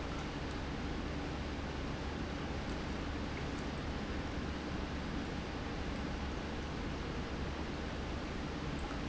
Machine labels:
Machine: pump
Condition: normal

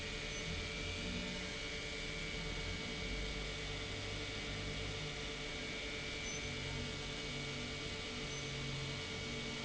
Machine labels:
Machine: pump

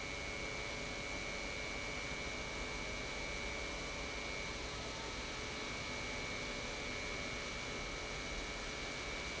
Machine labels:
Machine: pump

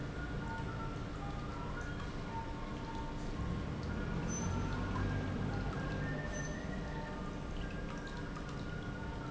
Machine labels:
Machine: pump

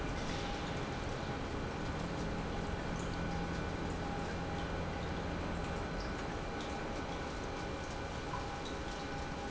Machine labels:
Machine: pump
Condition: normal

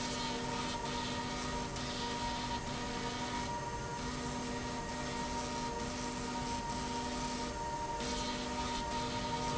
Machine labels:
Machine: slide rail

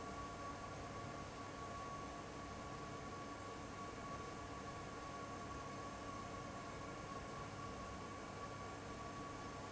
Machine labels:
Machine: fan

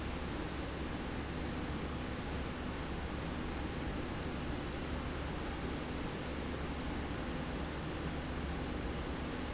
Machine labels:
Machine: slide rail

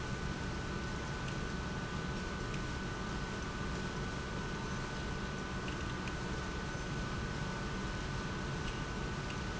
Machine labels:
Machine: pump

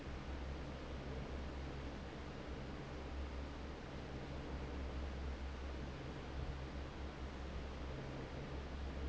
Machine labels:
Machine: fan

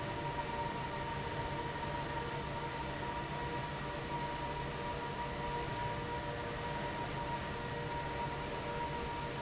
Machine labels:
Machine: fan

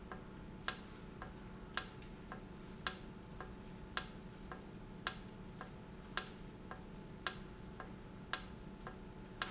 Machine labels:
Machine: valve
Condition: normal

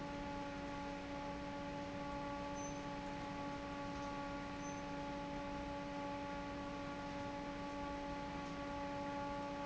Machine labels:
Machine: fan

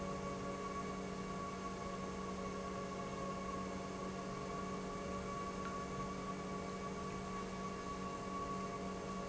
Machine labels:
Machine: pump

